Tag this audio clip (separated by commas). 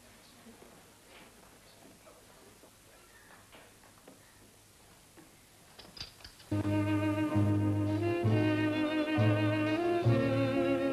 Music